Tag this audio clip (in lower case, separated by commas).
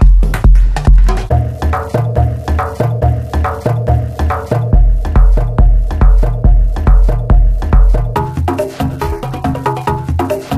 techno, music, musical instrument, bass drum